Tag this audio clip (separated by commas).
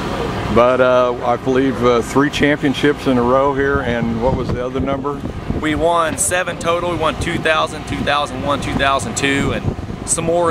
Speech, Vehicle